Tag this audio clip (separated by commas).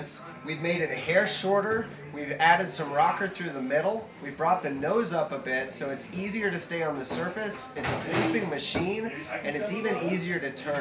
Speech